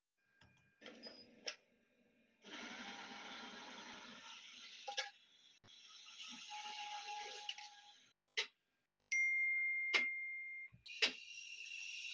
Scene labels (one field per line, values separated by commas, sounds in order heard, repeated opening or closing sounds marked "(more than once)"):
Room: kitchen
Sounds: coffee machine, phone ringing